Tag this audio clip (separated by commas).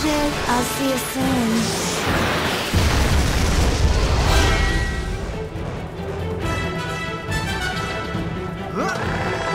Speech, Music